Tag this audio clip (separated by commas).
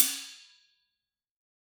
Cymbal, Hi-hat, Percussion, Musical instrument, Music